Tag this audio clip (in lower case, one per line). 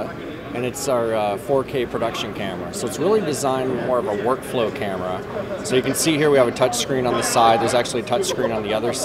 speech